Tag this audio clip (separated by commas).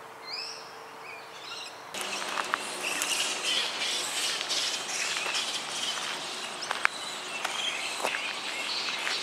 Bird